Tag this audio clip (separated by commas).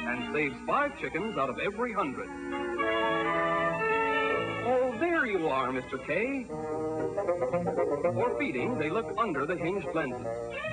Music, Speech